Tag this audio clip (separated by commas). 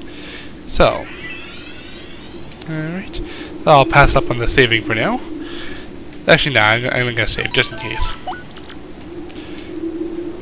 Speech